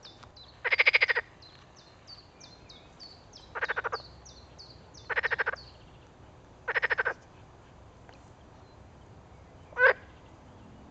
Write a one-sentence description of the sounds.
Birds chirping and a frog croaking